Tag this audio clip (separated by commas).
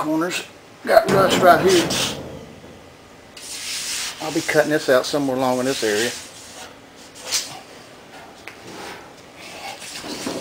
Speech